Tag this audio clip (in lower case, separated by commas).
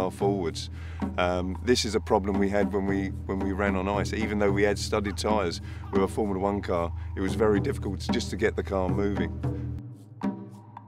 music, speech